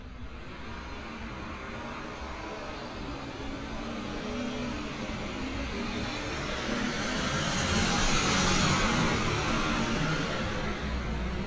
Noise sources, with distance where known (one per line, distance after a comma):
engine of unclear size, near